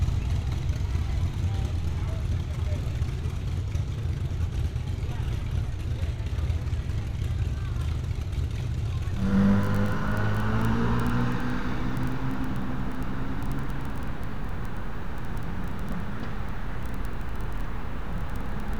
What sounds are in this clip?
medium-sounding engine